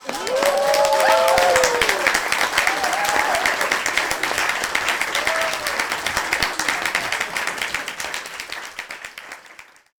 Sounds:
Cheering, Applause, Human group actions

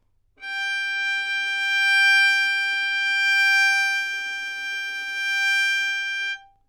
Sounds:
Bowed string instrument, Music, Musical instrument

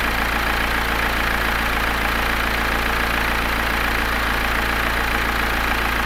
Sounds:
Engine, Vehicle, Motor vehicle (road), Truck, Idling

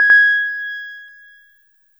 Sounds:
Piano, Music, Keyboard (musical), Musical instrument

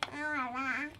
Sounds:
Speech, Human voice

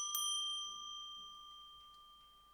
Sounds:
Bell

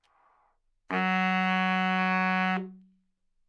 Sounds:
Wind instrument, Music, Musical instrument

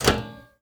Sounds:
Microwave oven, Domestic sounds

